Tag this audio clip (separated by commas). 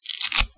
Tearing, Domestic sounds